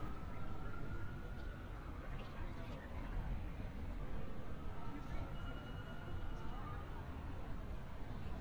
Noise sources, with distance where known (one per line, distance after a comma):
siren, far
person or small group talking, far